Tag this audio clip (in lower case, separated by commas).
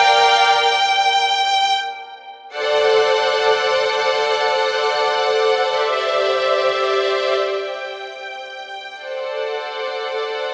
music, background music